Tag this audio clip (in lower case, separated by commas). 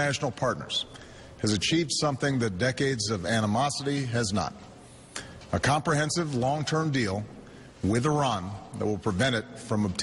speech